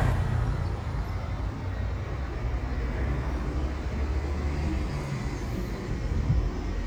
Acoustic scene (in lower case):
street